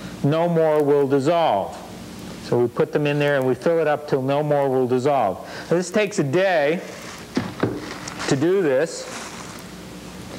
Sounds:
Speech

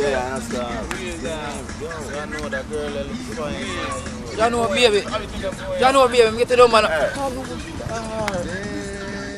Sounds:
Music, Speech

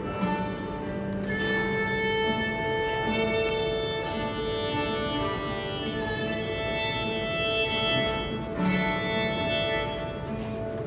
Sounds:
Musical instrument, Violin, Music

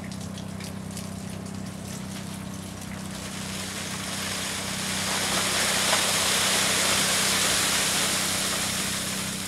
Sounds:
Breaking

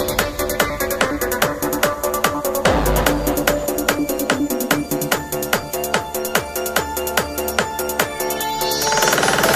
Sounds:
Music

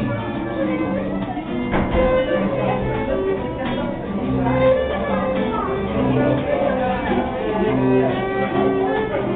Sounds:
Folk music, Music

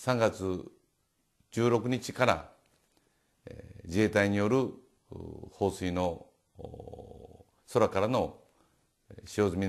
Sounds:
Speech

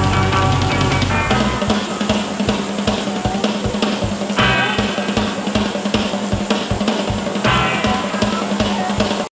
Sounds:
Music, Speech

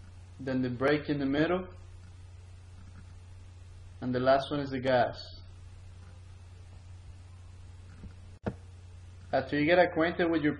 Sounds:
Speech

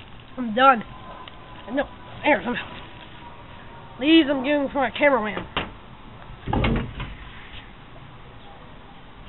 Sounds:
Child speech, Door

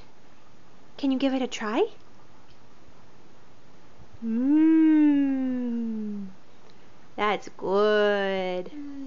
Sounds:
inside a small room, Speech

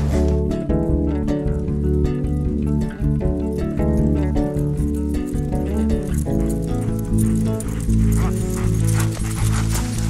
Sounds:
Music

